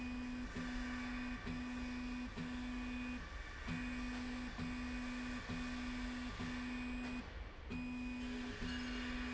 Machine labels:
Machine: slide rail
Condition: normal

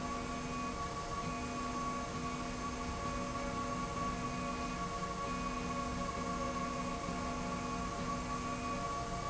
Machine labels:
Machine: slide rail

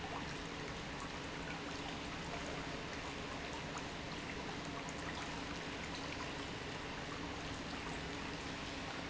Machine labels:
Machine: pump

